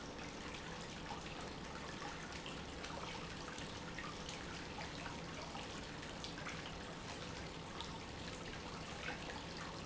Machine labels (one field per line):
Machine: pump